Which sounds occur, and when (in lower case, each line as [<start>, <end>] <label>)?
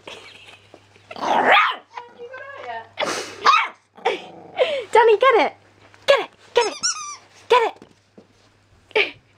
[0.00, 0.55] generic impact sounds
[0.00, 9.35] background noise
[0.43, 0.74] laughter
[1.04, 1.14] laughter
[1.10, 1.79] bark
[1.87, 2.01] generic impact sounds
[1.88, 2.89] female speech
[2.34, 2.78] laughter
[2.98, 3.43] breathing
[3.42, 3.66] bark
[3.99, 4.82] growling
[4.00, 4.23] laughter
[4.54, 4.91] breathing
[4.90, 5.50] female speech
[5.71, 5.98] generic impact sounds
[6.02, 6.26] female speech
[6.27, 6.47] generic impact sounds
[6.47, 7.15] squeak
[6.52, 6.68] female speech
[7.48, 7.70] female speech
[7.73, 8.41] generic impact sounds
[8.91, 9.20] laughter